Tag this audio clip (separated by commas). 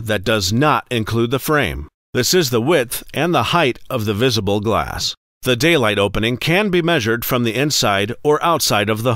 Speech